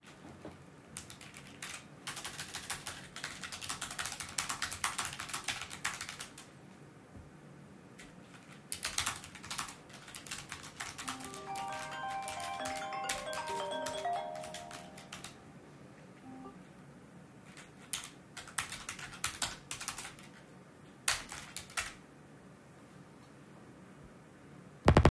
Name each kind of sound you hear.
keyboard typing, phone ringing